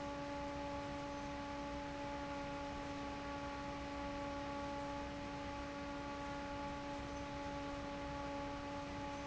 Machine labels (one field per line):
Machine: fan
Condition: normal